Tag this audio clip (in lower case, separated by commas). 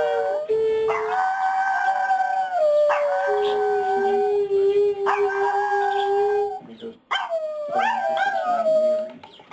yip, animal, speech, dog, pets